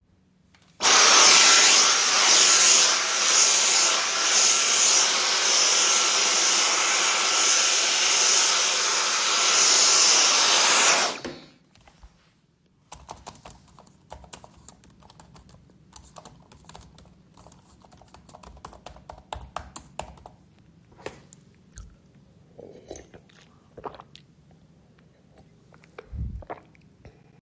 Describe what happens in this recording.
I was vacuum cleaning, then I typed on my keyboard. After that, I drank my coffee.